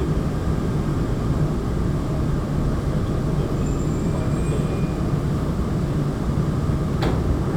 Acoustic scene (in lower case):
subway train